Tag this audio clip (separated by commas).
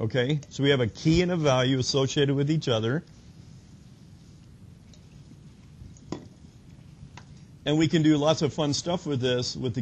Speech